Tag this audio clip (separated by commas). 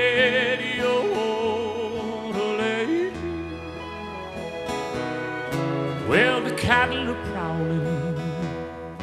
Music